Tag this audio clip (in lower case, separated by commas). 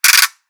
mechanisms, ratchet